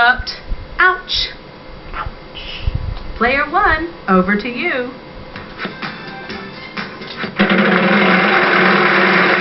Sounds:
Music, Speech

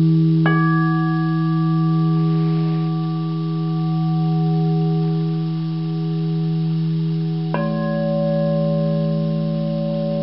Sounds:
Glass, Singing bowl

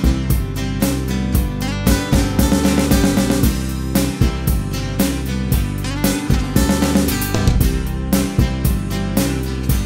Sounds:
Music

